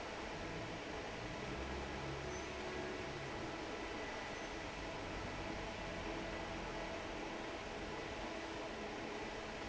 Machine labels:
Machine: fan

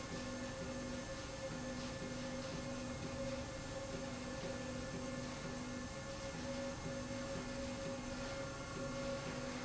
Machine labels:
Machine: slide rail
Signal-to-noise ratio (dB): 0 dB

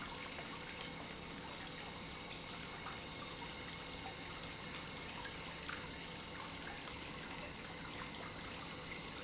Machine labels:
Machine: pump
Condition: normal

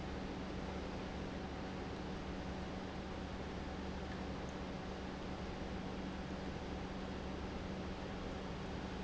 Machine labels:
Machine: pump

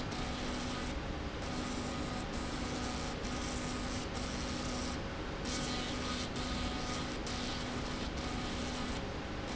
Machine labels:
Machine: slide rail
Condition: abnormal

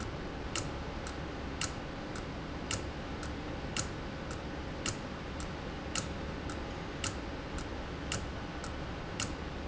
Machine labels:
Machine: valve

